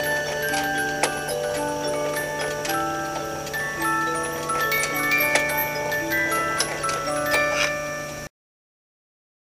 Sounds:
Tick-tock

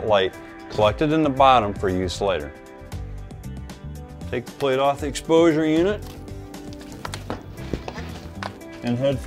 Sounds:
Speech, Music

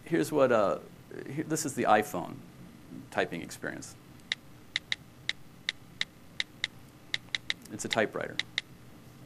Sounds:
Speech

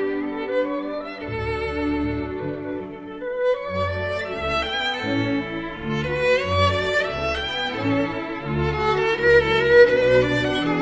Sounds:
Music, Violin

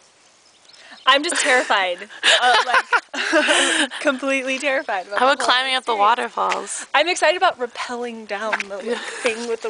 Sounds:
Speech

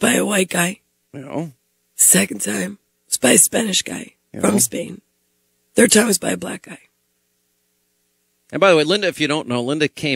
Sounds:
Speech

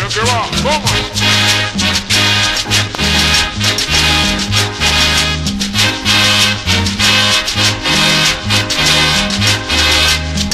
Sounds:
Music, Swing music

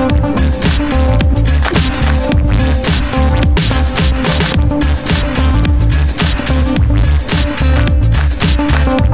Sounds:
Music, Drum and bass

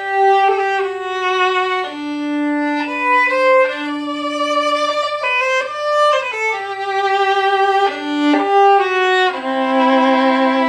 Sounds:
Music, Musical instrument, fiddle

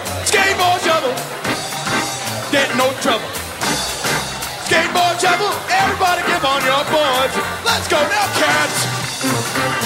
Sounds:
Music

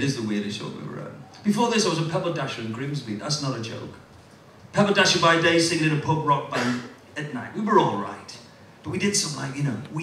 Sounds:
Speech

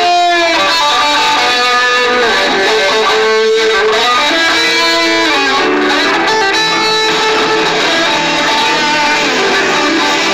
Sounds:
Music

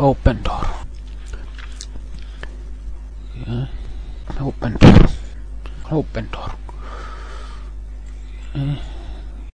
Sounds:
Speech

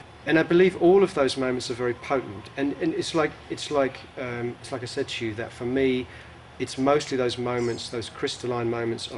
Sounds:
Speech

